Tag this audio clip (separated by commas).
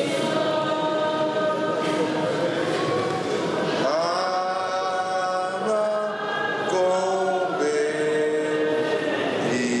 Speech